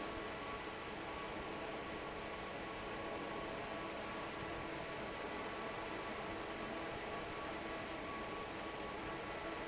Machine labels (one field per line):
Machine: fan